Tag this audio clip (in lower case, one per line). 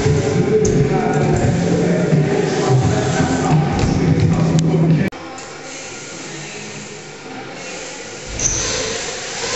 music
speech